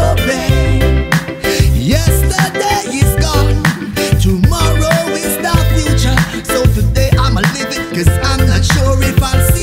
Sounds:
music
dance music
blues

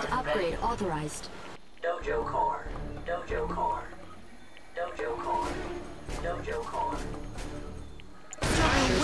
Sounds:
speech

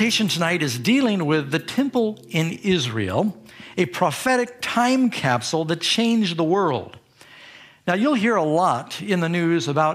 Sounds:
music
speech

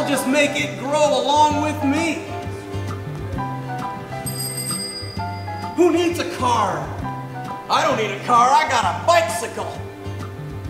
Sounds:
music
bicycle
speech

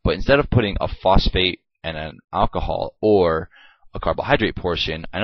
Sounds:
speech

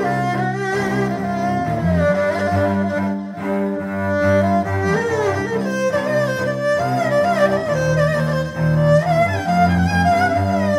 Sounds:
playing erhu

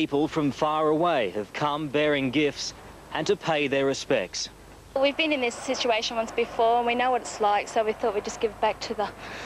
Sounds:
speech

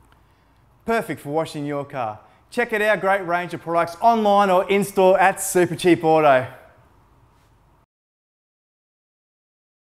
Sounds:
speech

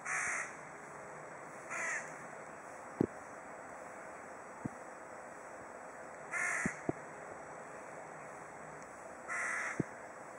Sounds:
crow cawing

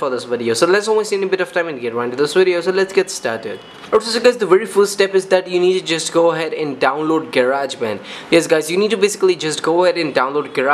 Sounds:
speech

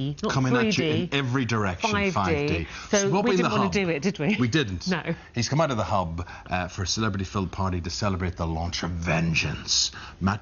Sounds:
speech

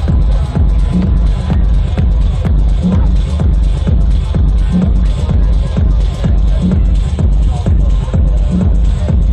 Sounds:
speech
music
electronic music
electronica

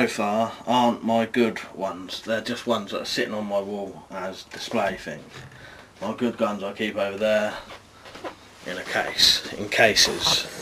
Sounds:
speech

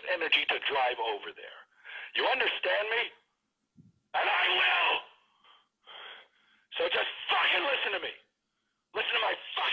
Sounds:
speech

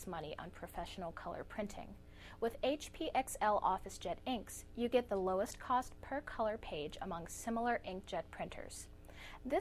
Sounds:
speech

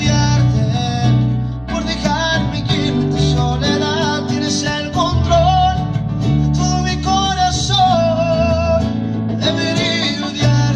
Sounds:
music

